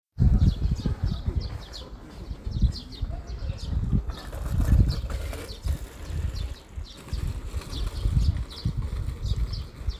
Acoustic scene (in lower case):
park